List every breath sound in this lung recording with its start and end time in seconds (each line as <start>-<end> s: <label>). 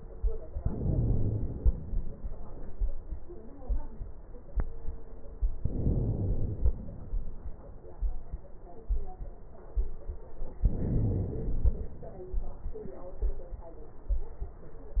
0.59-1.54 s: inhalation
1.56-2.50 s: exhalation
5.60-6.55 s: inhalation
6.57-7.52 s: exhalation
10.64-11.59 s: inhalation
11.59-12.54 s: exhalation